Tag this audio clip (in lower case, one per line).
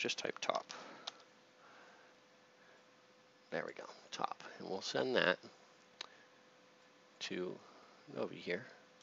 clicking
speech